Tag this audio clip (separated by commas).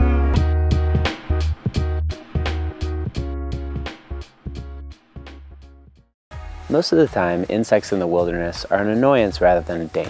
Speech, Music